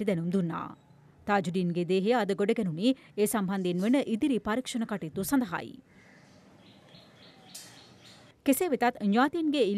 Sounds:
Bird vocalization, Bird, tweet

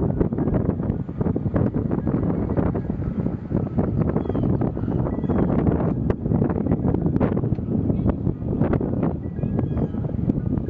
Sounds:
Speech, Music

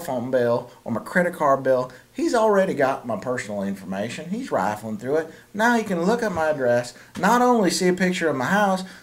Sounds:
Speech

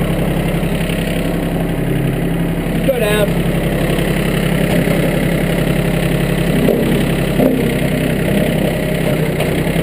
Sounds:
Speech

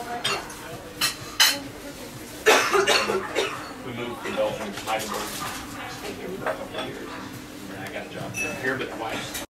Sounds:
Speech, Bow-wow

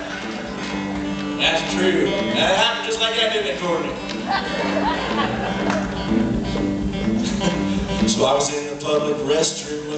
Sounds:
Speech, Music

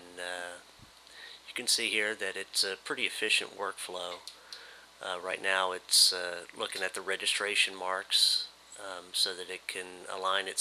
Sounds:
Speech

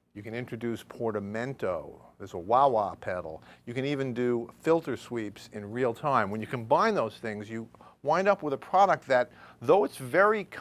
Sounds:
Speech

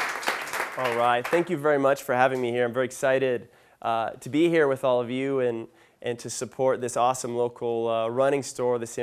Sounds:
Speech

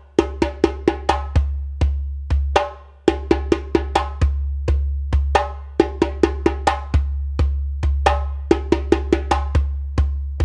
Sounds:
Percussion, Music

